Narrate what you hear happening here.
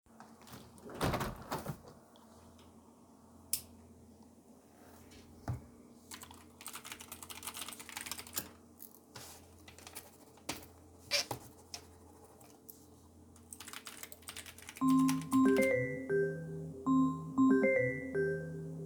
I opened my balcony door, was writing on my pc, then I took some notes on a piece of paper and then my phone rang.